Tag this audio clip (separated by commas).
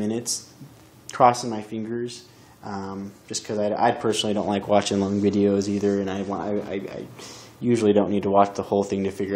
Speech